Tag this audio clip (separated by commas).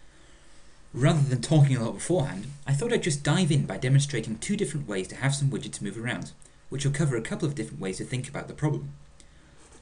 Speech